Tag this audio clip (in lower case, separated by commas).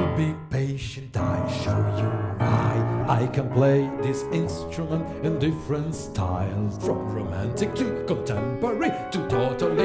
male singing, music